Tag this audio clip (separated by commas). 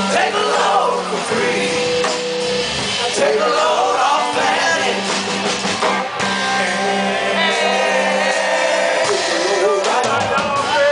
Jazz, Music